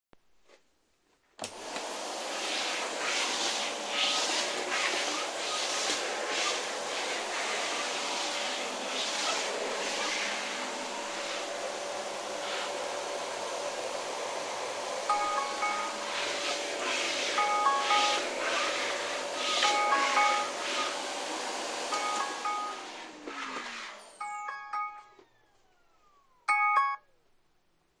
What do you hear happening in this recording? I started the vaccum cleaner in my bedroom through pressing the button with my foot and cleaned the floor around the bed. While I was cleaning, my phone lying on a sideboard started ringing. I turned off the vacuum cleaner and leaned it onto the bed, where it slipped a little. Then I answered the phone.